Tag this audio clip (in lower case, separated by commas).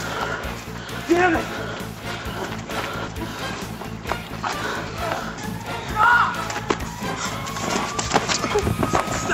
music, speech, run